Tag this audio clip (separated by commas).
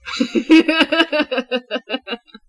Human voice, Laughter